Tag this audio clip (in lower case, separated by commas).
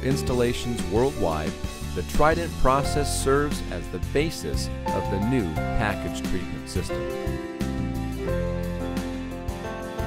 speech, music